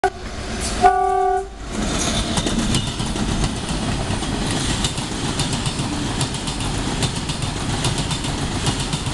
A train blows its horn and speeds down the track